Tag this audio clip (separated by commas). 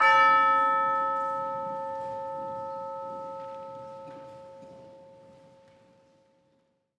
Music, Musical instrument, Percussion